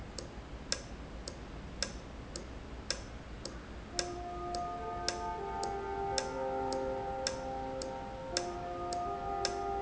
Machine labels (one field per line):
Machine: valve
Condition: normal